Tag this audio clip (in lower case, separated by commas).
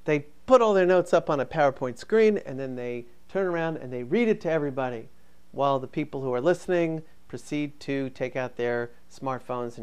speech, male speech